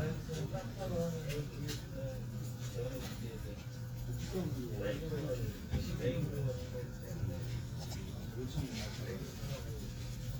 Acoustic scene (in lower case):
crowded indoor space